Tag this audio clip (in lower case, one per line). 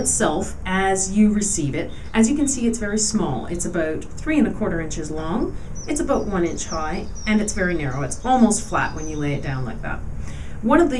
speech